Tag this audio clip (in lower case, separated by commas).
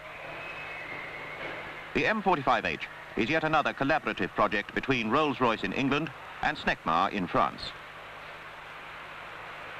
speech